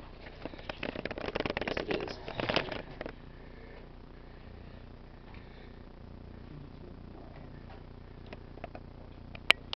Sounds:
Speech

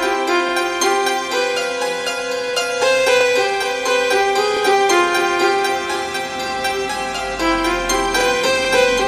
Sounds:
Harpsichord, Music

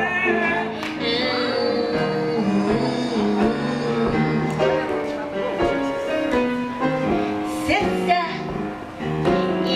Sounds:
Music, Female singing

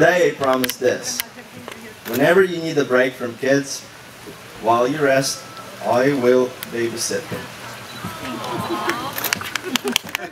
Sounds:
Speech

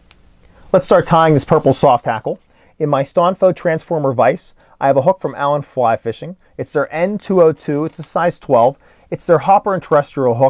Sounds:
Speech

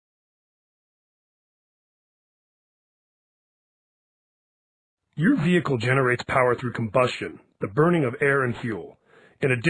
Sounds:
Speech

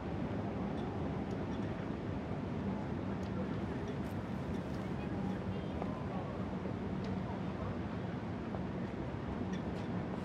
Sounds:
Speech

